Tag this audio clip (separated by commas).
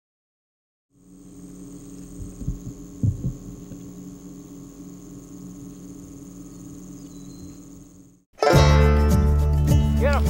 Music, Bird